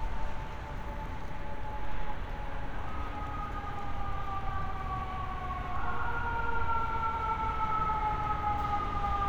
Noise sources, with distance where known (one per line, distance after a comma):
siren, far